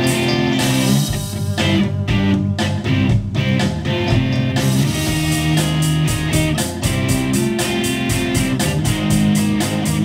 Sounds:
music, independent music, blues

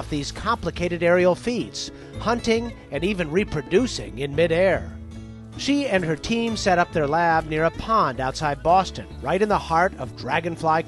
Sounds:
music, speech

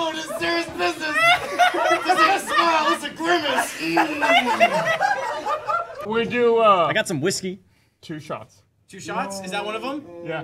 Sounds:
speech

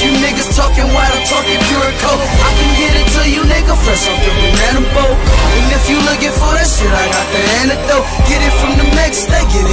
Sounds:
music

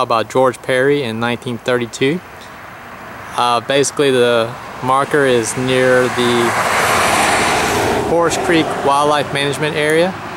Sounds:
vehicle, outside, rural or natural, speech

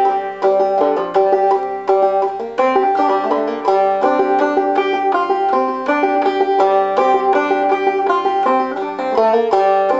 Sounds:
banjo, music

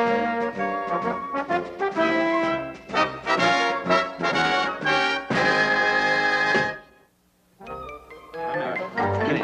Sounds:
speech, inside a small room, music

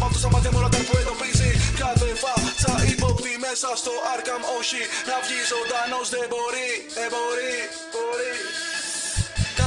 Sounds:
electronic music, dubstep, music

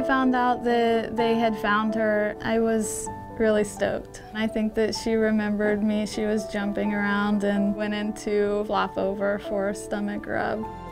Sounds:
music, speech

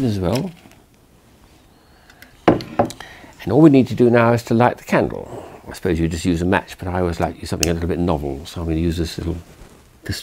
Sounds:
speech

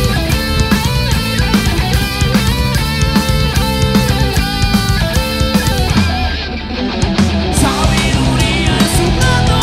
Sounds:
heavy metal, rock music, music, singing

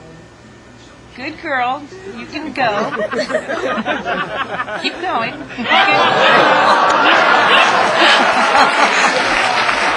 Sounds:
speech

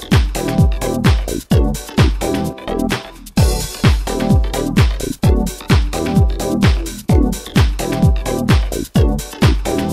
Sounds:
music

